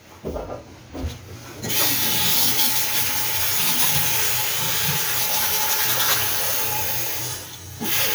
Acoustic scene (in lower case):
restroom